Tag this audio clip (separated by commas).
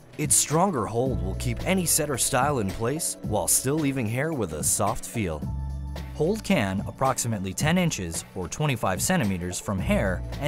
Music, Speech